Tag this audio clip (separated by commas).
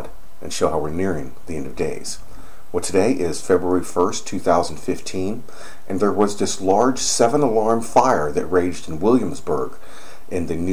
Speech